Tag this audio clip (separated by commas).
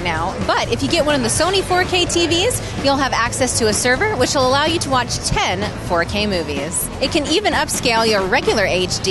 Music, Speech